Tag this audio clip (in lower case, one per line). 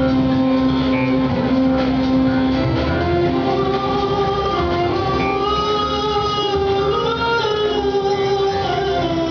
music
sad music